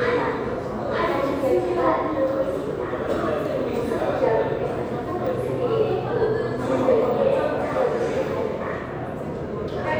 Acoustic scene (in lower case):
subway station